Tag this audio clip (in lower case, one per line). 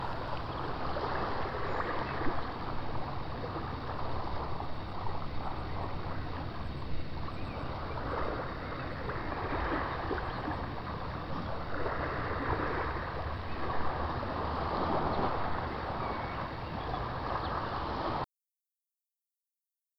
water
ocean